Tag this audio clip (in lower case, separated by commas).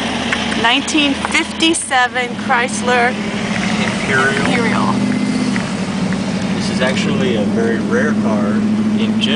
car, outside, urban or man-made, speech, motor vehicle (road), vehicle